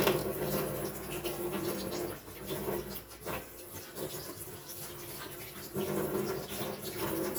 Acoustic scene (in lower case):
kitchen